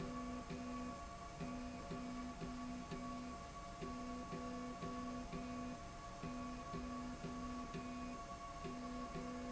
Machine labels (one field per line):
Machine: slide rail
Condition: normal